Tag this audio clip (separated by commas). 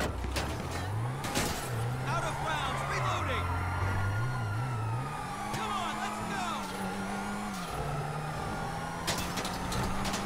Speech, Police car (siren), Car, Vehicle